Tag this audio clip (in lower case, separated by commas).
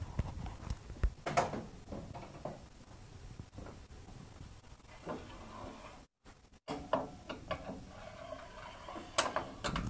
tools